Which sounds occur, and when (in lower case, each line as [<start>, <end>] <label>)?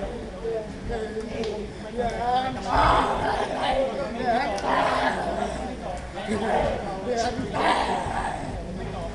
[0.00, 9.14] mechanisms
[0.36, 0.65] male speech
[0.86, 1.67] male speech
[1.36, 1.59] generic impact sounds
[1.82, 5.68] male speech
[2.03, 2.17] generic impact sounds
[2.60, 3.28] shout
[4.49, 4.71] generic impact sounds
[4.60, 5.69] shout
[5.88, 9.14] male speech
[5.91, 6.13] generic impact sounds
[6.46, 6.94] shout
[7.57, 8.60] shout